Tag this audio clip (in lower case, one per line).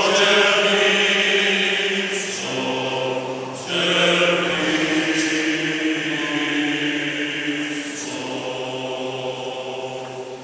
male singing
choir
female singing